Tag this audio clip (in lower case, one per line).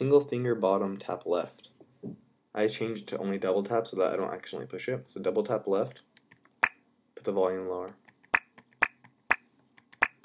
speech